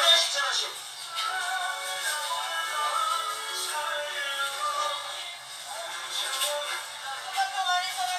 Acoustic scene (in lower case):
crowded indoor space